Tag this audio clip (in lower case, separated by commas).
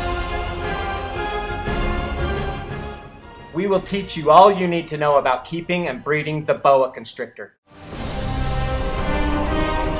speech, music